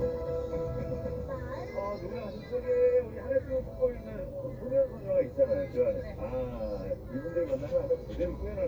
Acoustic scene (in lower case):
car